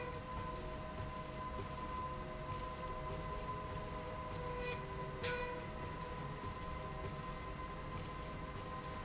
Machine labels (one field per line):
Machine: slide rail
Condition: normal